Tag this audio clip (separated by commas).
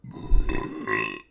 eructation